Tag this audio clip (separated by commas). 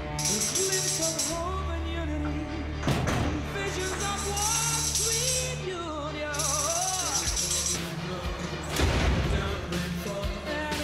playing tambourine